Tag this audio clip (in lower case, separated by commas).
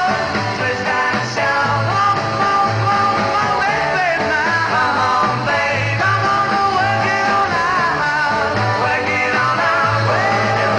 singing, music, rock and roll